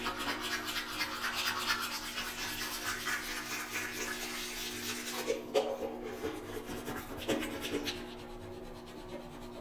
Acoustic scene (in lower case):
restroom